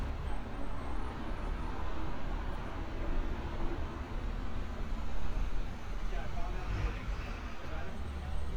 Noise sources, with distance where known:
large-sounding engine, far
person or small group talking

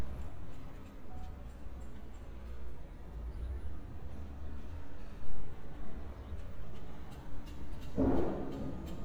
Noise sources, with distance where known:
non-machinery impact, near

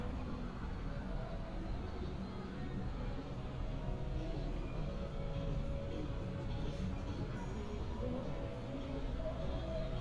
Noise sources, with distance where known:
music from a moving source, near

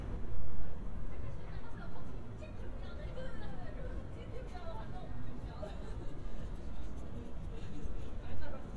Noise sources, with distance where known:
person or small group talking, near

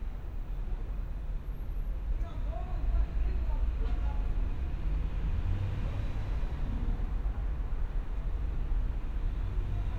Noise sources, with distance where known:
engine of unclear size, near
person or small group talking, near

